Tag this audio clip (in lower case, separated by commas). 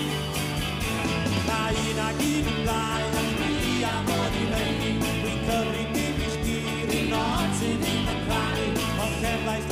singing, music, rock and roll